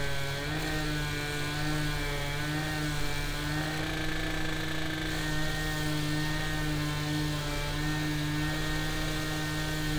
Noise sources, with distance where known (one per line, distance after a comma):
unidentified powered saw, near